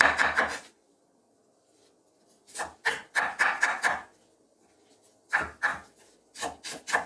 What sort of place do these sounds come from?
kitchen